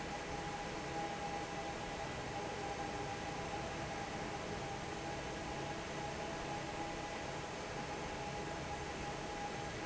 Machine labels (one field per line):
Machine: fan